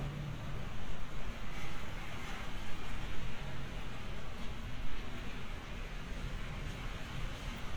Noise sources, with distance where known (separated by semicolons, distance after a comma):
engine of unclear size